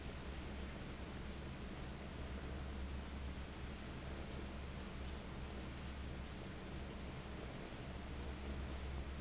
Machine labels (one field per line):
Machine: fan